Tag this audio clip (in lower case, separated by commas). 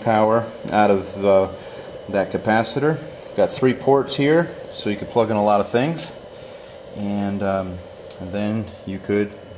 inside a small room, speech